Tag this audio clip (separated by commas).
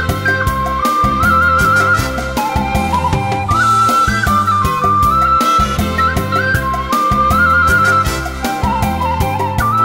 Flute, woodwind instrument